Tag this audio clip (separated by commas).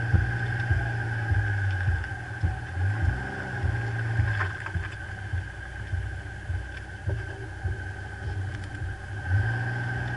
Vehicle, Car